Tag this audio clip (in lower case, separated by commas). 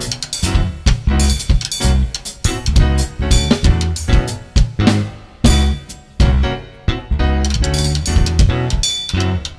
musical instrument, music, drum, drum kit